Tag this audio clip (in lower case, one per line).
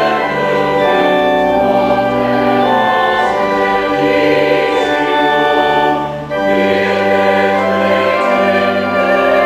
music